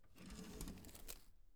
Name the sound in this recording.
wooden drawer opening